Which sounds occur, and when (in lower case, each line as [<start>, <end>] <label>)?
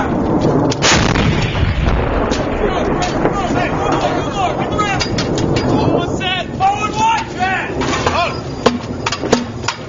[0.00, 9.85] wind
[0.35, 0.50] generic impact sounds
[0.70, 1.86] artillery fire
[2.27, 2.42] generic impact sounds
[2.48, 3.06] male speech
[2.52, 8.44] conversation
[3.02, 3.25] generic impact sounds
[3.22, 4.98] male speech
[3.87, 3.99] generic impact sounds
[4.99, 5.63] generic impact sounds
[5.72, 6.39] male speech
[6.57, 7.74] male speech
[6.92, 7.21] generic impact sounds
[7.83, 8.11] generic impact sounds
[8.02, 8.42] male speech
[8.58, 8.79] generic impact sounds
[9.02, 9.14] generic impact sounds
[9.29, 9.43] generic impact sounds
[9.62, 9.80] generic impact sounds